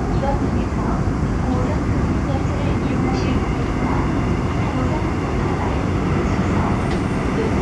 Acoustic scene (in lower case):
subway train